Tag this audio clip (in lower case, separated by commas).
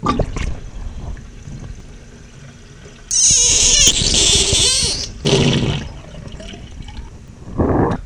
sink (filling or washing), domestic sounds